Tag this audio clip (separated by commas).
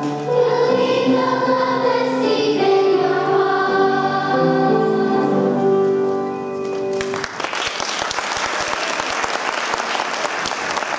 Singing, Choir, Music